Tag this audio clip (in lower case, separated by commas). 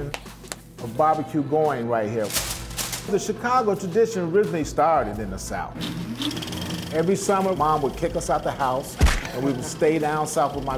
speech, music